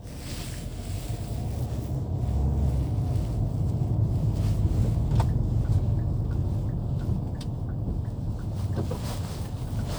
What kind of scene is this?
car